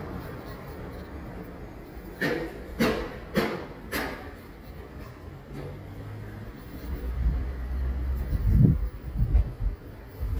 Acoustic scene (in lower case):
residential area